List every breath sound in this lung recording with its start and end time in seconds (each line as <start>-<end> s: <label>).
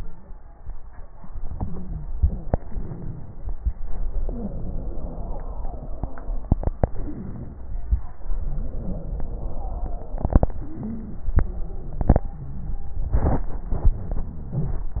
1.48-2.11 s: inhalation
1.48-2.11 s: crackles
2.16-3.53 s: exhalation
2.16-3.53 s: wheeze
3.60-4.28 s: inhalation
3.60-4.28 s: crackles
4.32-6.54 s: exhalation
4.32-6.54 s: crackles
6.89-7.61 s: inhalation
6.89-7.61 s: crackles
8.24-10.45 s: exhalation
8.24-10.45 s: crackles
10.63-11.42 s: inhalation
10.63-11.42 s: stridor
11.45-13.73 s: exhalation
11.45-13.73 s: crackles